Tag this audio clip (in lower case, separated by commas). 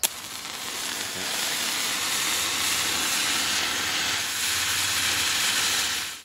fire